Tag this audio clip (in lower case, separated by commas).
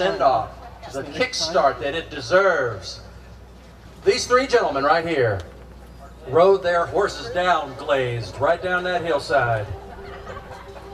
speech, music